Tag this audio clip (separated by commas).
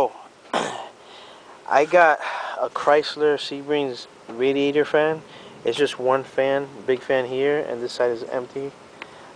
Speech